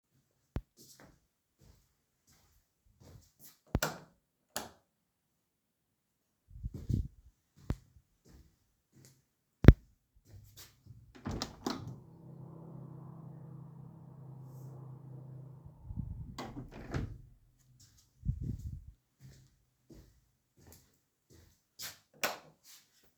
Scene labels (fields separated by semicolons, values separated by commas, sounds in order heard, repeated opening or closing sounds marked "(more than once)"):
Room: kitchen; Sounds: footsteps, light switch, window (more than once)